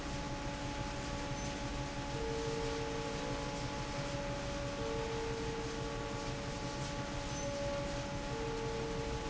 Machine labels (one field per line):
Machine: fan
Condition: normal